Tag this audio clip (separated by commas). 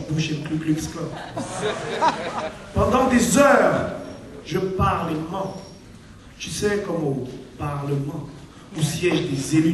Speech